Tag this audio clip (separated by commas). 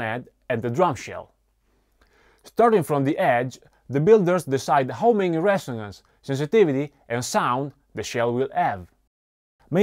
Speech